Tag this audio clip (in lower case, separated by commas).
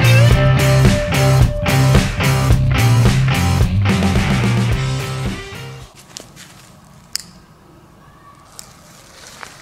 strike lighter